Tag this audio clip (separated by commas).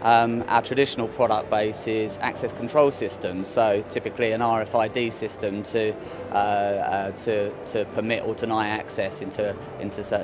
Music, Speech